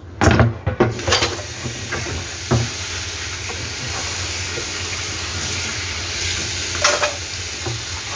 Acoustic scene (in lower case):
kitchen